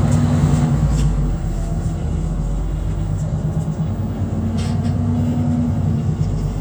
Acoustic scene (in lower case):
bus